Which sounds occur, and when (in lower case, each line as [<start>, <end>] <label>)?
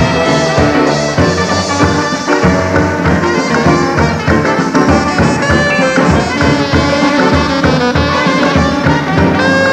[0.00, 9.72] music